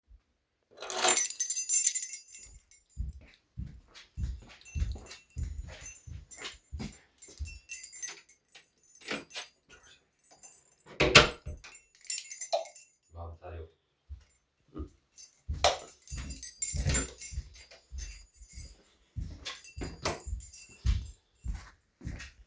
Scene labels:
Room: living room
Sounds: keys, footsteps, door (more than once), light switch

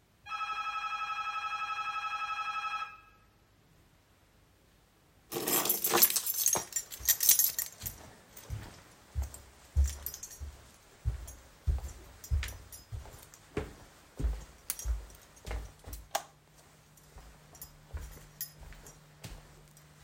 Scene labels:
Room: hallway, living room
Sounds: phone ringing, bell ringing, keys, footsteps, light switch

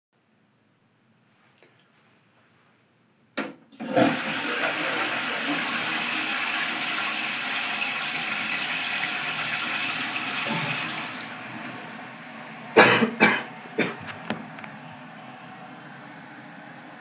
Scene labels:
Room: bathroom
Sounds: toilet flushing

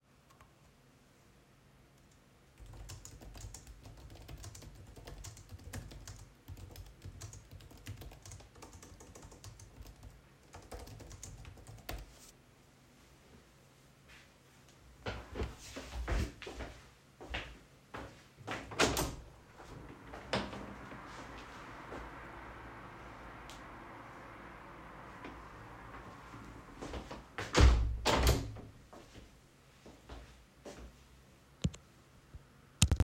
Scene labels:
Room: bedroom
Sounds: keyboard typing, footsteps, window (more than once)

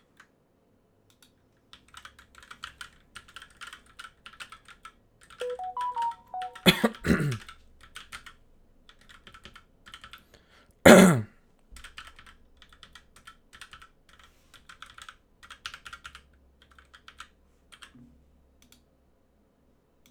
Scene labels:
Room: office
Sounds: keyboard typing, phone ringing

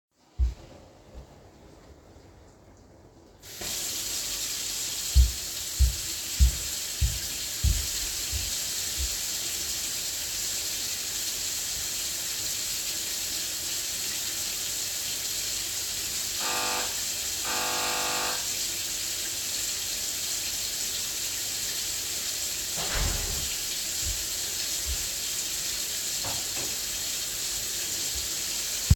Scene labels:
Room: kitchen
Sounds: footsteps, running water, bell ringing, door (more than once)

